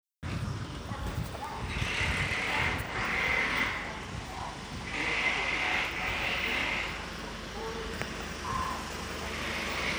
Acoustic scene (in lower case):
residential area